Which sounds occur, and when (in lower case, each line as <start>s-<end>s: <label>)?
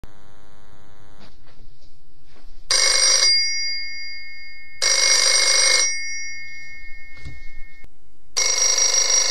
0.0s-1.3s: mains hum
1.3s-9.3s: background noise
2.7s-7.9s: telephone bell ringing
3.6s-3.7s: tap
7.2s-7.4s: tap
8.3s-9.3s: telephone bell ringing